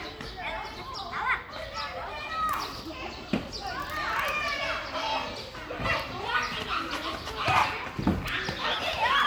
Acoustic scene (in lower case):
park